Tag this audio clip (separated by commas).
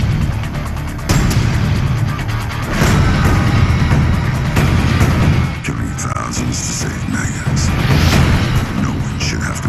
Music, Speech